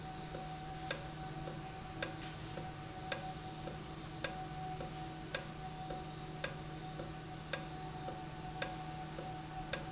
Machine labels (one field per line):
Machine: valve